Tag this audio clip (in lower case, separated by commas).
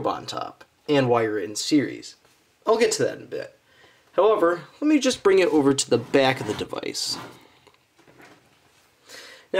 speech